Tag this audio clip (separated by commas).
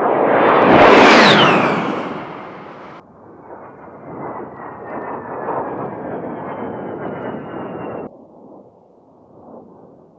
airplane flyby